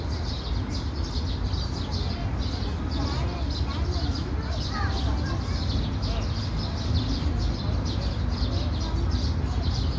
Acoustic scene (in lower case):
park